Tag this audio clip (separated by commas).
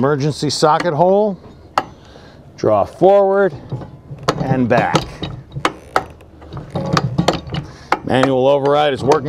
Speech